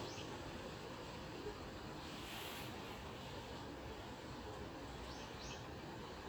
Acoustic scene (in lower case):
park